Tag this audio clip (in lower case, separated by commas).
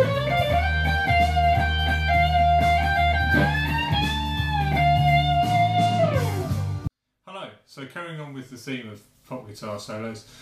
musical instrument, music, electric guitar, plucked string instrument, guitar, speech